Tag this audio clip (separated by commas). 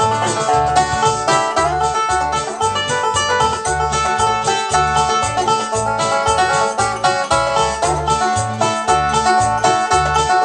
Banjo, Bluegrass, Country, Musical instrument, Plucked string instrument, playing banjo, Music